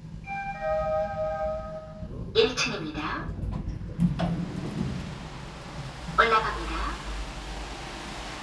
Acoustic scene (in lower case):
elevator